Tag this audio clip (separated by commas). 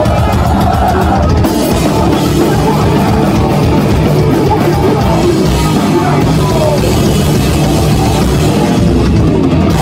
Singing, Music